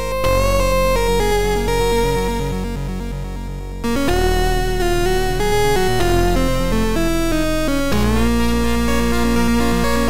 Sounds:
Music, Soundtrack music

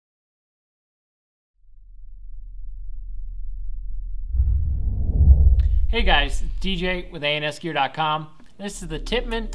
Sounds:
Music, Speech, Silence, inside a small room

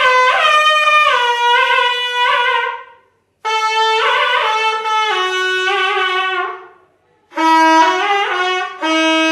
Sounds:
Wind instrument, Music, Musical instrument

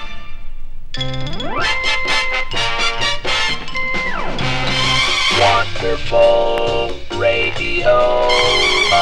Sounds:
Music, Radio

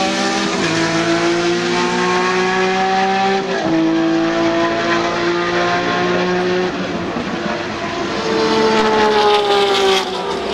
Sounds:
auto racing

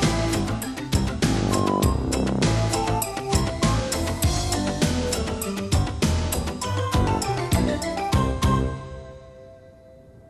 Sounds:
Music

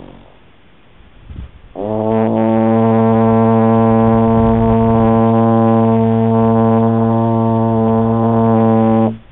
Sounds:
Music, French horn

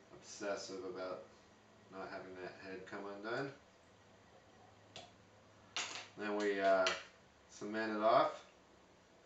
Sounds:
inside a small room, Speech

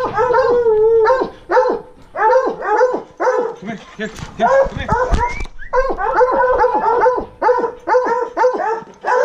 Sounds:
dog baying

